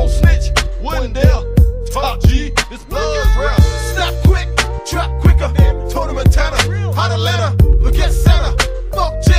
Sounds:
Music

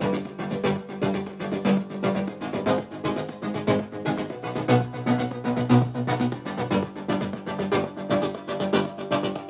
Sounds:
Dance music, Music

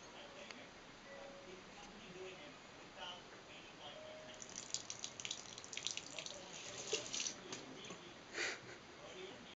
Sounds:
Speech, Sink (filling or washing)

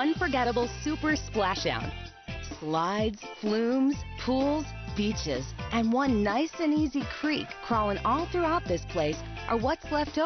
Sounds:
Music, Speech

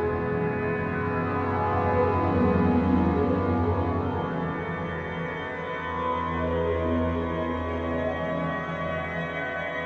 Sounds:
Music

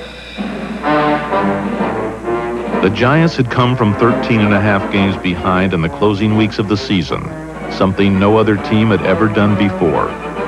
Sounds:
Music, Speech

